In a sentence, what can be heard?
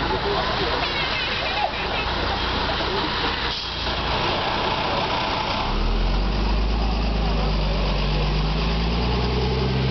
A bus idols, people speak, the bus takes off